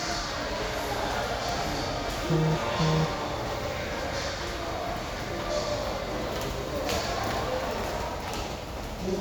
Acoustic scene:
crowded indoor space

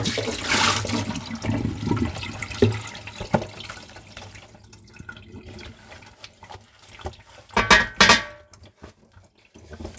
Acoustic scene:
kitchen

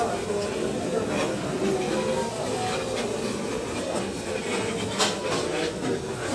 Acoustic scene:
crowded indoor space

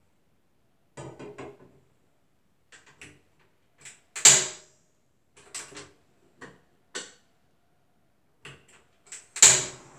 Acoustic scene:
kitchen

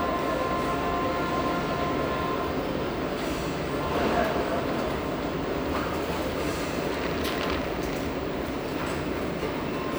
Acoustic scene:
restaurant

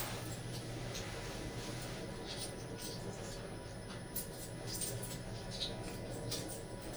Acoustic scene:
elevator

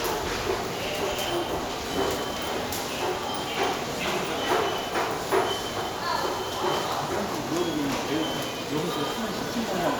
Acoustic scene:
subway station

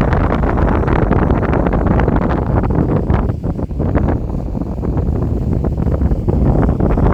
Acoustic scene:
park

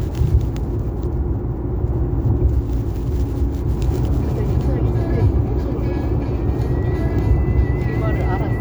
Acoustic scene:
car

